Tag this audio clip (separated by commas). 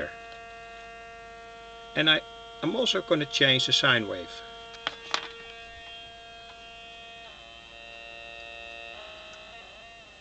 Hum, Mains hum